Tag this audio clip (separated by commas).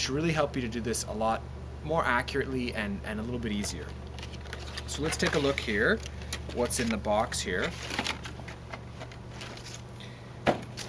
Speech